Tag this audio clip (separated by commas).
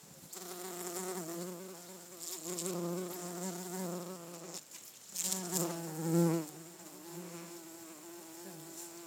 Buzz, Animal, Insect, Wild animals